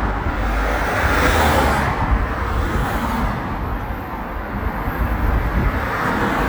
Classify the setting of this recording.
street